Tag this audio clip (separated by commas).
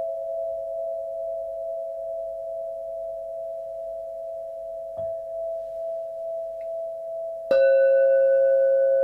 Singing bowl, Music